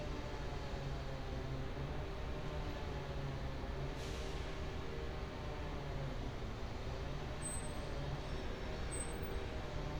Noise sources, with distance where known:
large-sounding engine, far; chainsaw, far

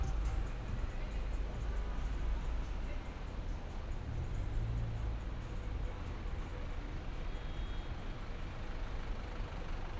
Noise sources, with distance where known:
medium-sounding engine

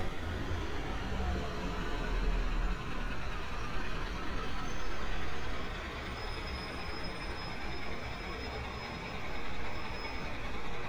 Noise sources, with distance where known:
large-sounding engine, near

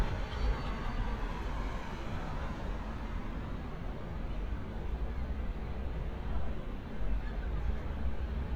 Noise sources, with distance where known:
person or small group talking, far

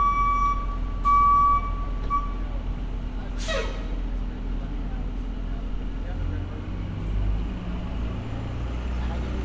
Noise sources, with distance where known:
unidentified alert signal, near

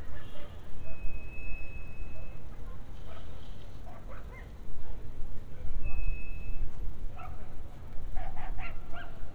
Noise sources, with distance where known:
engine of unclear size; unidentified alert signal, far; dog barking or whining, far

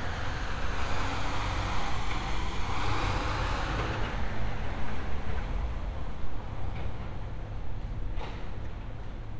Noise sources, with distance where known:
large-sounding engine

